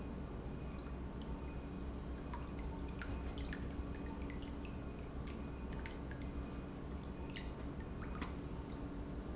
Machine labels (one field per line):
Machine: pump